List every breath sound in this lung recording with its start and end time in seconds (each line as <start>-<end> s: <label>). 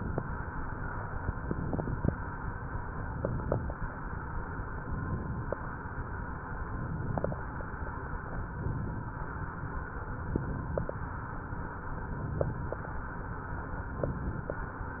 1.32-2.05 s: inhalation
1.32-2.05 s: crackles
3.04-3.76 s: inhalation
3.04-3.76 s: crackles
4.96-5.69 s: inhalation
4.96-5.69 s: crackles
6.69-7.42 s: inhalation
6.69-7.42 s: crackles
8.59-9.31 s: inhalation
8.59-9.31 s: crackles
10.31-11.04 s: inhalation
10.31-11.04 s: crackles
12.06-12.79 s: inhalation
12.06-12.79 s: crackles
13.97-14.70 s: inhalation
13.97-14.70 s: crackles